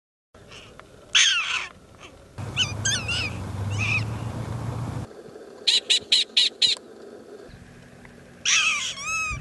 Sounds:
animal

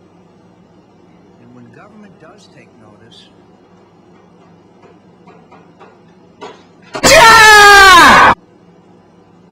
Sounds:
speech

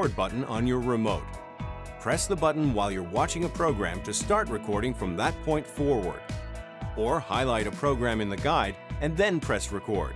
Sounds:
music, speech

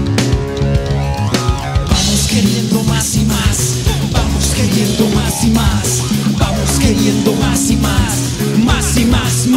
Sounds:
musical instrument, strum, plucked string instrument, music, electric guitar

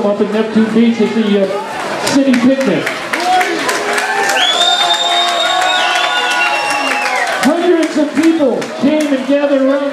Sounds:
speech

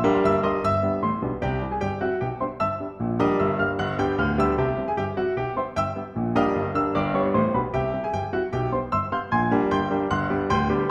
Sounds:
music

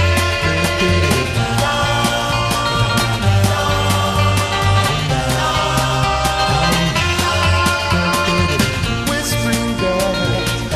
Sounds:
music

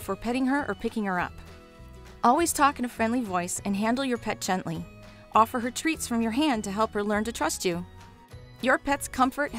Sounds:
speech, music

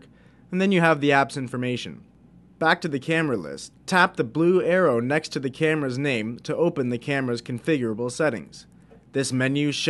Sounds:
speech

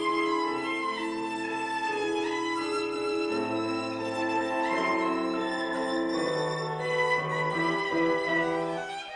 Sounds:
music, violin, musical instrument

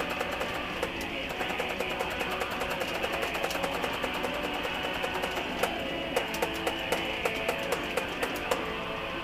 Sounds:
plucked string instrument, guitar, music, musical instrument, electric guitar

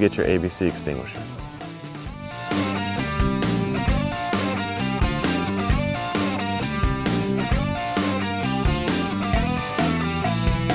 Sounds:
music, speech

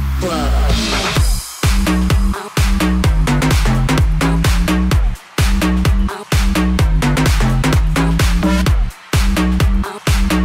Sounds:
disco, music

